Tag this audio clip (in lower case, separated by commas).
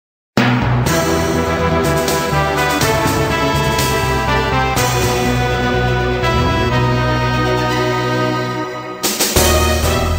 video game music